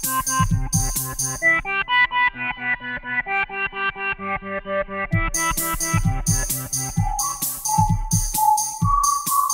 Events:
[0.01, 9.53] music

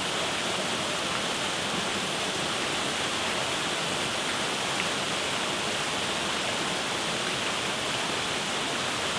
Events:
[0.00, 9.15] waterfall

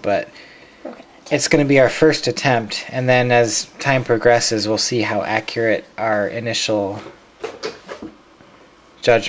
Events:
[0.00, 0.31] male speech
[0.00, 9.25] mechanisms
[0.30, 0.78] breathing
[0.78, 1.04] generic impact sounds
[1.29, 3.60] male speech
[3.79, 5.77] male speech
[5.30, 5.42] tick
[5.94, 7.07] male speech
[6.92, 7.12] generic impact sounds
[7.40, 7.72] generic impact sounds
[7.87, 8.12] generic impact sounds
[8.32, 8.52] generic impact sounds

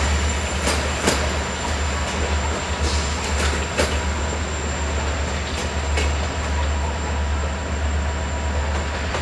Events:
[0.00, 9.21] train
[0.57, 1.18] clickety-clack
[1.55, 2.28] clickety-clack
[2.80, 4.04] clickety-clack
[5.00, 5.62] clickety-clack
[5.91, 6.73] clickety-clack
[8.64, 9.21] clickety-clack

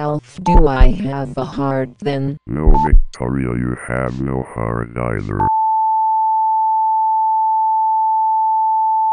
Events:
[0.00, 0.20] speech synthesizer
[0.00, 5.44] background noise
[0.13, 0.36] distortion
[0.35, 1.87] speech synthesizer
[0.45, 0.59] beep
[0.54, 0.88] heartbeat
[1.19, 1.34] distortion
[2.00, 2.34] speech synthesizer
[2.45, 5.46] speech synthesizer
[2.62, 2.90] heartbeat
[2.72, 2.86] beep
[4.01, 4.21] distortion
[5.15, 5.28] distortion
[5.37, 9.12] sine wave

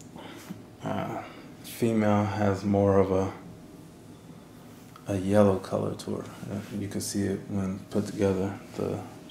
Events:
[0.00, 9.30] mechanisms
[0.13, 0.48] surface contact
[0.79, 1.46] man speaking
[1.61, 3.47] man speaking
[4.07, 4.70] brief tone
[4.83, 5.00] generic impact sounds
[5.03, 7.79] man speaking
[6.16, 6.30] tick
[6.27, 6.79] surface contact
[7.90, 8.55] man speaking
[7.92, 8.34] surface contact
[8.68, 9.05] man speaking

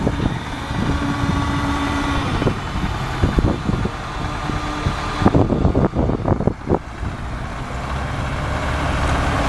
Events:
[0.00, 0.28] wind noise (microphone)
[0.00, 9.45] engine
[0.00, 9.45] wind
[0.64, 1.40] wind noise (microphone)
[2.21, 2.86] wind noise (microphone)
[3.14, 3.83] wind noise (microphone)
[4.13, 4.88] wind noise (microphone)
[5.11, 7.58] wind noise (microphone)

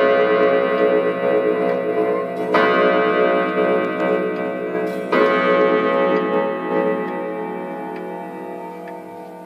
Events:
[0.00, 9.45] clock
[1.63, 1.74] tick
[3.96, 4.05] tick
[4.31, 4.42] tick
[6.10, 6.18] tick
[6.11, 9.45] background noise
[7.04, 7.12] tick
[7.91, 8.01] tick
[8.83, 8.93] tick

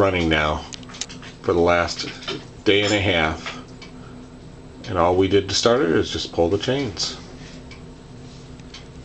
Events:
[0.01, 9.04] mechanisms
[0.07, 0.73] male speech
[1.44, 2.37] male speech
[2.67, 3.69] male speech
[4.86, 7.21] male speech

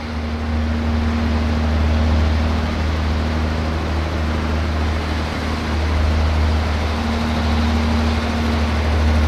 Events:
[0.00, 9.25] truck

